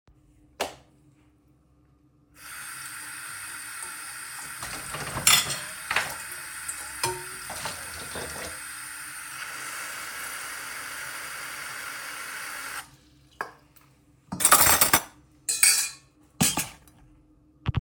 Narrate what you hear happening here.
I went to the kicthen, turned on the light, washed a pan (to cook noodles) and grabbed a fork.